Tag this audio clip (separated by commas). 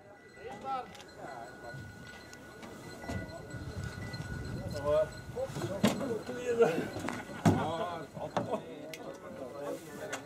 Speech